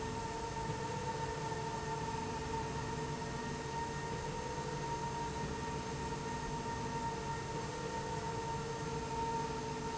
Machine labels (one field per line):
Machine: slide rail